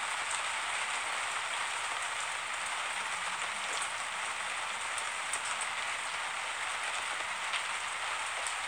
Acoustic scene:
street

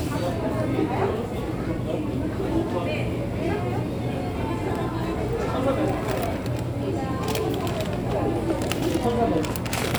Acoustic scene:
crowded indoor space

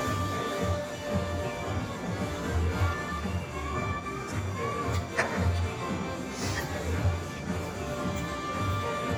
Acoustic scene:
restaurant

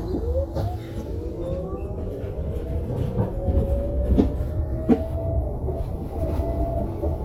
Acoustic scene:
bus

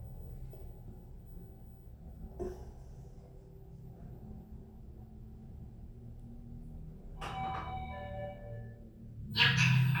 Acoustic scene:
elevator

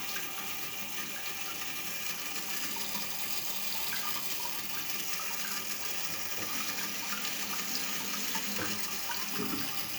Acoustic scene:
restroom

